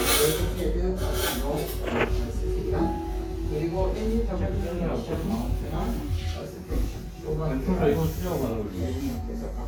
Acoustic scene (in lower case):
crowded indoor space